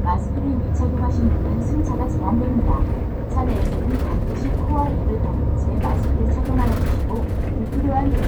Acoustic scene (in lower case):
bus